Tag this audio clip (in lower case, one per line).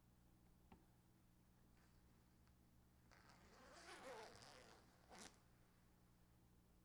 zipper (clothing)
home sounds